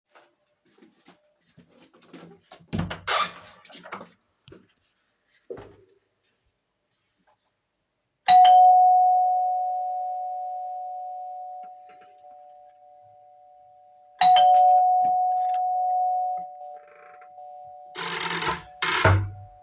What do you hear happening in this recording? The doorbell rang. I walked to the front door and opened it to see who was there, then walked back.